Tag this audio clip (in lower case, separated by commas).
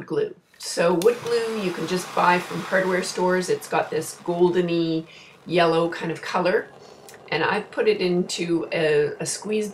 speech